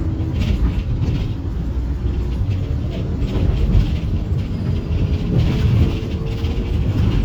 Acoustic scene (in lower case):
bus